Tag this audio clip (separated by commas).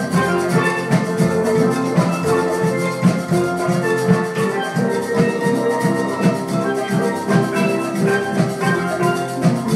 Drum, Music, Drum kit, Musical instrument